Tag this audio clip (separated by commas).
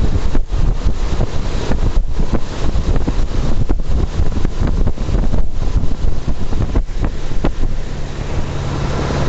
Wind noise (microphone)